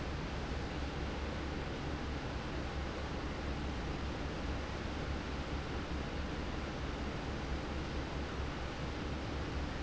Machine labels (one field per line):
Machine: fan